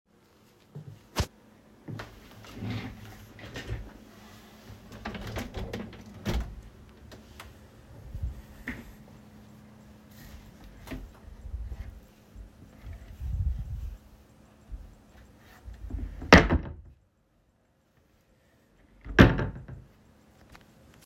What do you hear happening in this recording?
I opened the window. Then I opened my warderobe and closed it again.